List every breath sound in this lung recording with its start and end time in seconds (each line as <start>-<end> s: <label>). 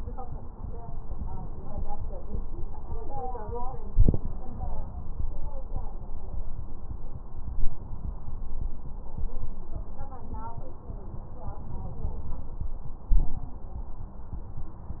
No breath sounds were labelled in this clip.